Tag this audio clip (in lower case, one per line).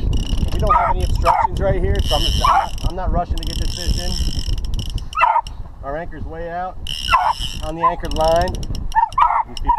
outside, rural or natural
speech